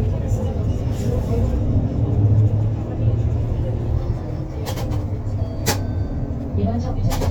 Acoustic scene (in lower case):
bus